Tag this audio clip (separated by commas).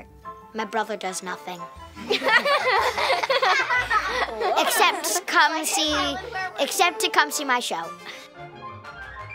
kid speaking, Music, Speech, inside a large room or hall